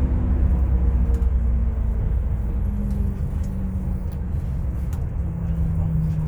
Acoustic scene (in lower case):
bus